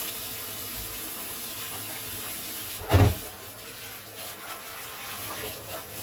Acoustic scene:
kitchen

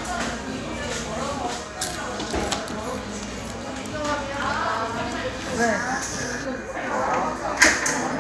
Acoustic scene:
cafe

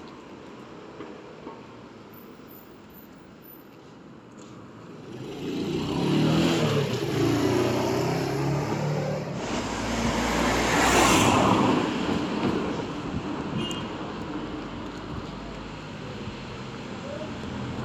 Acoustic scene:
street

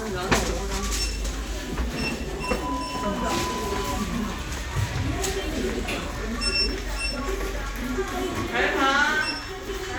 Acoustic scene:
elevator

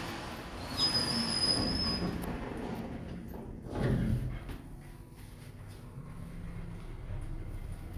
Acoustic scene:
elevator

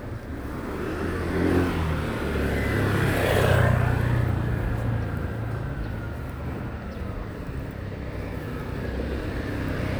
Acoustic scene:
residential area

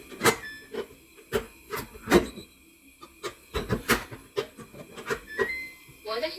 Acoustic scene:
kitchen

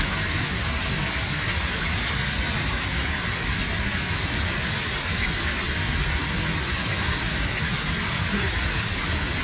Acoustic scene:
park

